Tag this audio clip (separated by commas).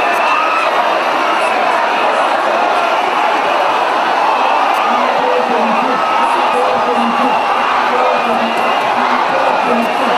Crowd, Speech, people crowd